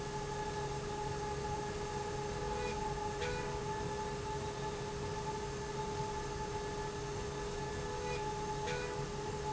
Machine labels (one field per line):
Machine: slide rail